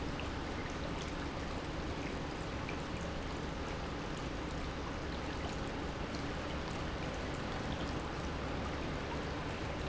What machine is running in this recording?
pump